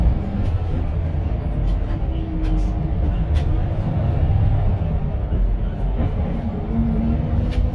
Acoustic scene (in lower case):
bus